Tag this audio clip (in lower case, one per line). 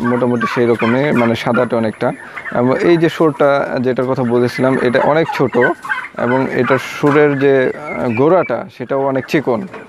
francolin calling